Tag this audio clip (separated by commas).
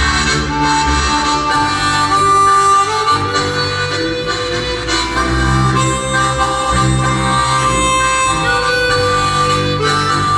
Harmonica, Music